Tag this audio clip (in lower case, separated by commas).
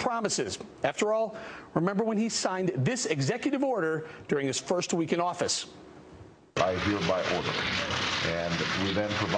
speech, male speech, narration